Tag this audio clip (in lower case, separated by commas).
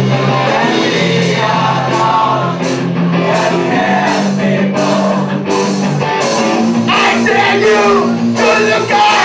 music, vocal music, singing